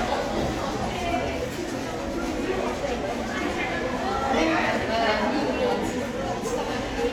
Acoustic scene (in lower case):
crowded indoor space